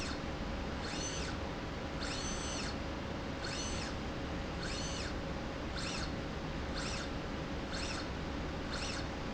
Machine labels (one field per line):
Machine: slide rail